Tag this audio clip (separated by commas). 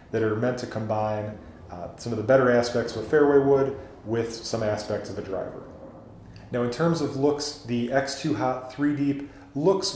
Speech